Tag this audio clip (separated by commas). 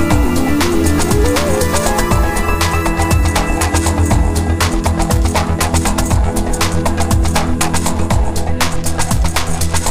Drum and bass